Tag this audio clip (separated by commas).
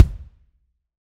Musical instrument, Music, Drum, Bass drum, Percussion